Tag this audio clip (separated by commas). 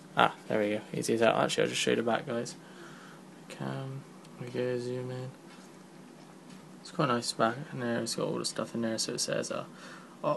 Speech